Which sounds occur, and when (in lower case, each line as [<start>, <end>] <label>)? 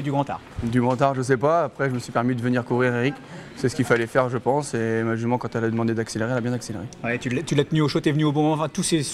[0.00, 0.32] male speech
[0.00, 9.13] background noise
[0.43, 3.21] male speech
[3.61, 6.91] male speech
[7.03, 9.13] male speech